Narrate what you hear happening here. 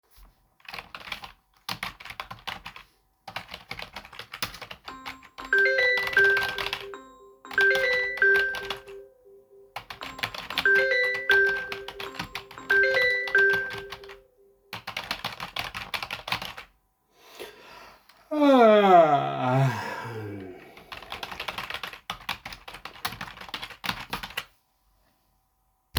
I placed the recording device on the desk and started typing on the keyboard. While typing, the phone started ringing, creating a short overlap between typing and phone ringing.